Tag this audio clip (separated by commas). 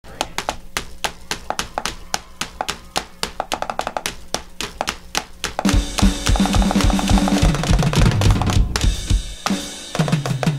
Music, Musical instrument, Drum kit, Drum